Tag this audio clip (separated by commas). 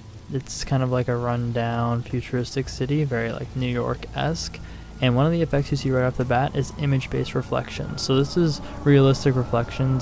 Speech